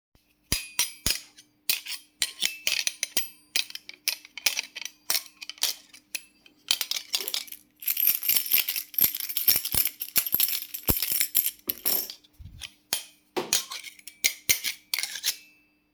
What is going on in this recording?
I am standing at the kitchen counter sorting through some cutlery and dishes. I move several forks and plates, creating a clinking sound. While doing this, I try to find my keys, afterwhich i set my keychain down on the hard surface next to the dishes.